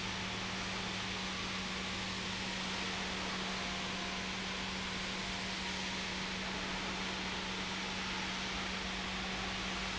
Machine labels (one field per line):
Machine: pump